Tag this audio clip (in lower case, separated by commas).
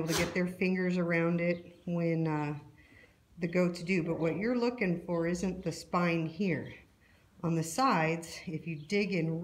speech